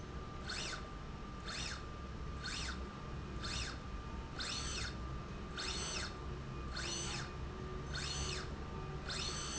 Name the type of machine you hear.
slide rail